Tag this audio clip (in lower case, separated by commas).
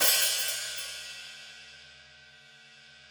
music, hi-hat, musical instrument, percussion, cymbal